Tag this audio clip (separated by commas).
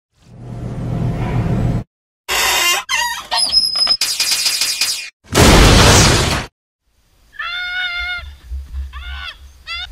Music